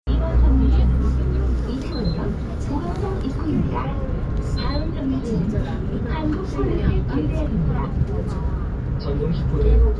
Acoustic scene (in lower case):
bus